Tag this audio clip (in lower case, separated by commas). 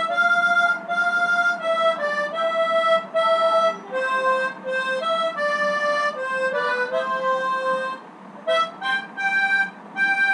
woodwind instrument, harmonica